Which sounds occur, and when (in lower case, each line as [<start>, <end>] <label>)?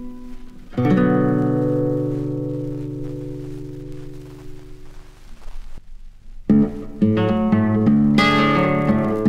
[0.00, 5.22] music
[0.00, 9.25] noise
[6.45, 9.25] music